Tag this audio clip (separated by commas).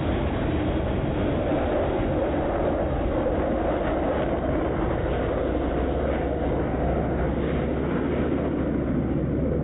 Motor vehicle (road), Car, Car passing by, Vehicle